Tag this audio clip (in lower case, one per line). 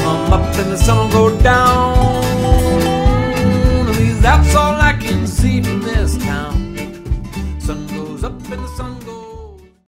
music